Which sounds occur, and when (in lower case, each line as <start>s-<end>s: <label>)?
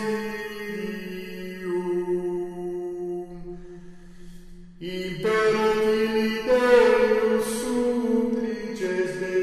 0.0s-3.7s: chant
0.0s-3.7s: music
3.7s-4.8s: breathing
4.8s-9.4s: chant
4.8s-9.4s: music